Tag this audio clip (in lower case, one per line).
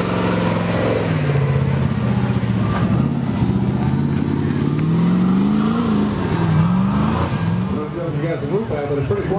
vehicle
auto racing
speech